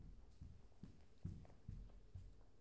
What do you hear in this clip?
footsteps